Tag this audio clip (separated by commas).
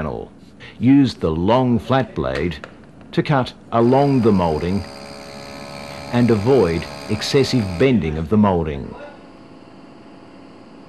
Tools, Speech